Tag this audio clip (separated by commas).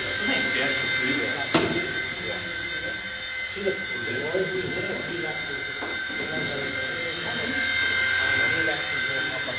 Speech, Vehicle, Aircraft